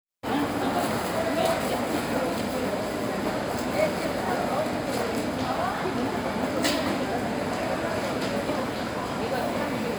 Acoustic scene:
crowded indoor space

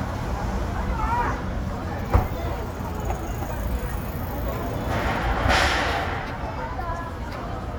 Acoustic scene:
residential area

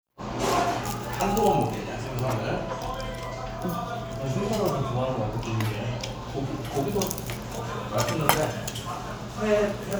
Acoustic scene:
restaurant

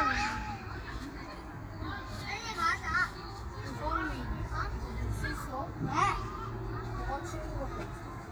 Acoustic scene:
park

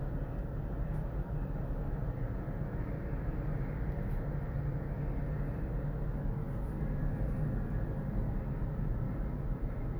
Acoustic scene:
elevator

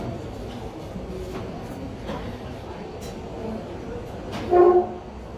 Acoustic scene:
cafe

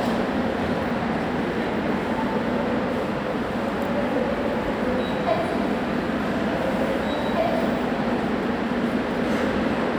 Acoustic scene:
subway station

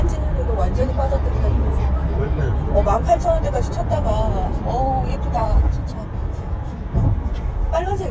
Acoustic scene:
car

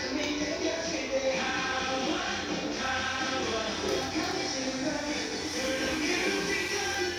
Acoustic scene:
restaurant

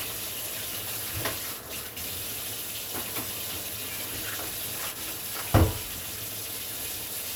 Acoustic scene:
kitchen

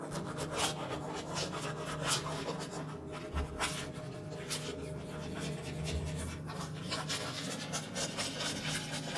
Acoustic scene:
restroom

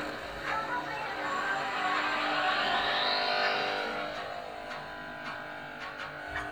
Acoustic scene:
cafe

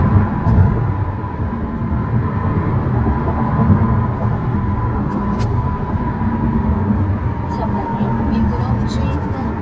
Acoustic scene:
car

